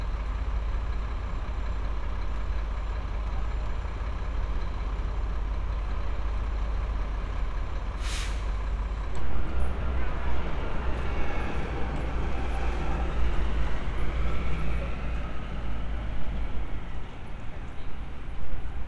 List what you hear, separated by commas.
large-sounding engine